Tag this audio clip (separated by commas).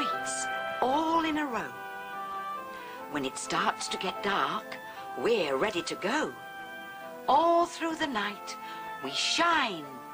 Speech, Music